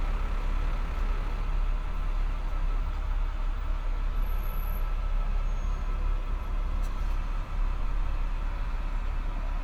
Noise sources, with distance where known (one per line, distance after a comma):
large-sounding engine, near